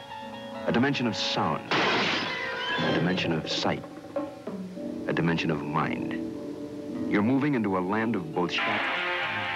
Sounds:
music
speech

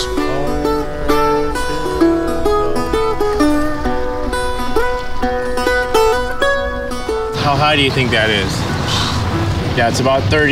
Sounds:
speech
music

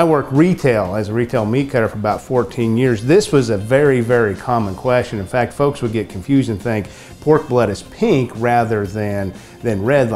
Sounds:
speech
music

